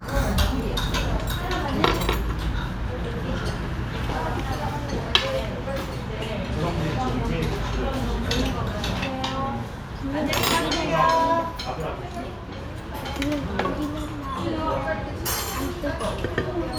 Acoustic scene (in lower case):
restaurant